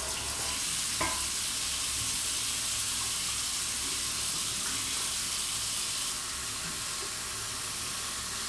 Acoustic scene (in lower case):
restroom